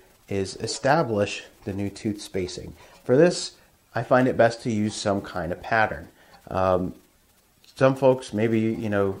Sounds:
Rub, Filing (rasp), Tools

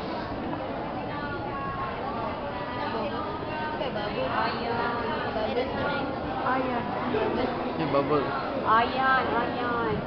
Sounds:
Speech

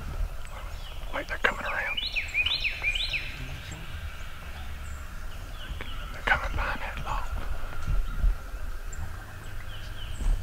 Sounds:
Animal, Speech

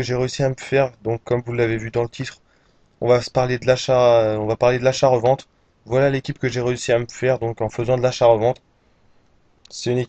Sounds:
Speech

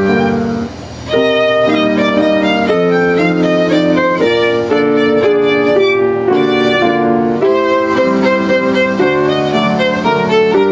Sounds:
Bowed string instrument, Violin

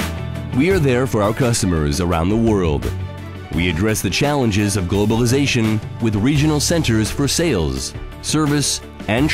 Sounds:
Music, Speech

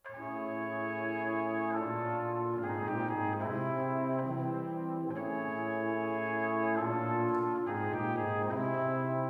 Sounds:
Brass instrument, Trumpet, Music, Trombone, playing french horn, Musical instrument, French horn

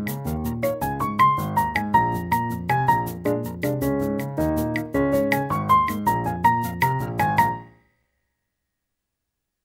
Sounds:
Music

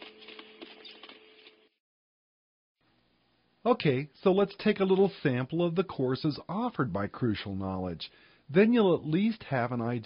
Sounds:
Speech

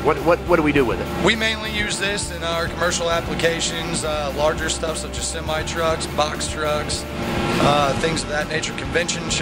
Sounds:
Speech, Music

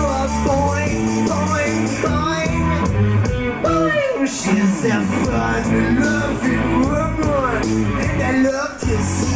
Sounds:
Music

